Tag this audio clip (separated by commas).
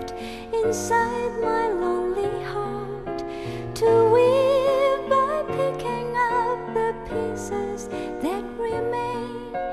Female singing, Music